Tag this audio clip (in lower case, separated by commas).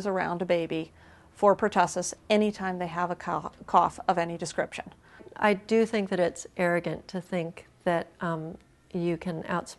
inside a small room, speech